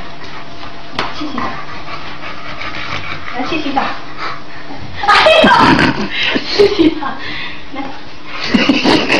Dog breathing and woman speaking in an excited voice